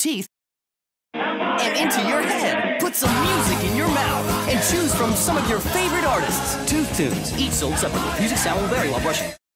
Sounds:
speech, music

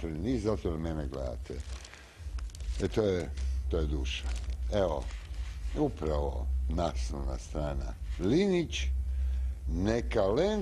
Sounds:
speech

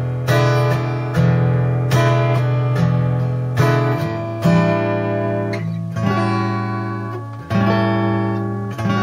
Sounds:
musical instrument, plucked string instrument, guitar, music, acoustic guitar, strum

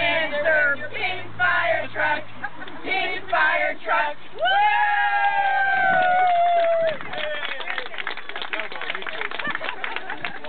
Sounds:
speech

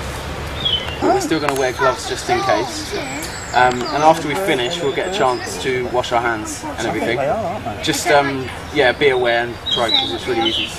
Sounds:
bird, speech

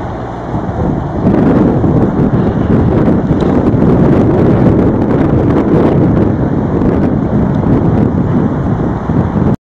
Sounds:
sailing ship

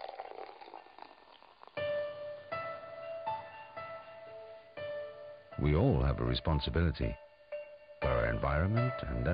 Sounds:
music, speech

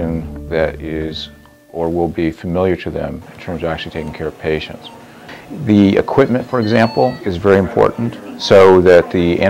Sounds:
music, speech

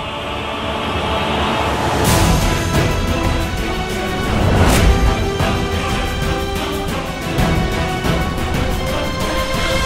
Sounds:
music

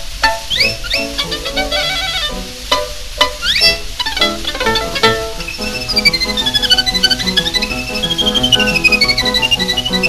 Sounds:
pizzicato, bowed string instrument, fiddle

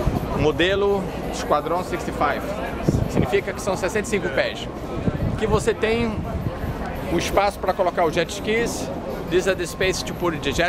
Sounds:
speech, boat, vehicle

